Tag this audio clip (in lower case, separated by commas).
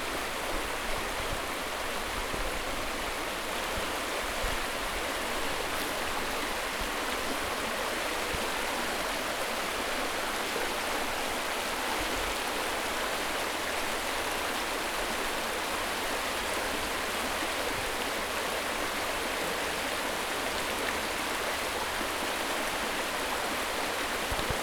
water, stream